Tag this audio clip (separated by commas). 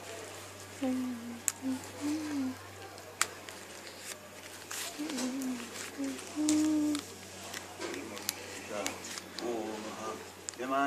Speech, outside, rural or natural